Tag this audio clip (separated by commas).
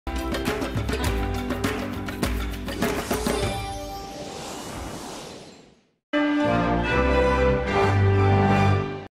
Music